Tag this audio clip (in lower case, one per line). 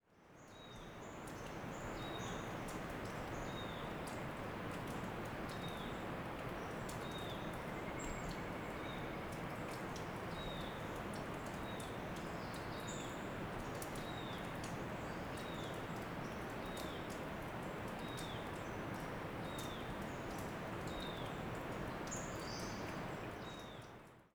drip
liquid